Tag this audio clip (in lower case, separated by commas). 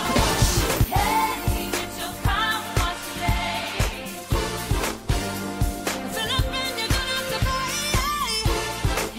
music